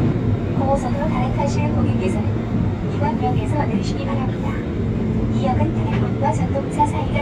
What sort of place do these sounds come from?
subway train